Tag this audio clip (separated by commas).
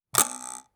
home sounds, silverware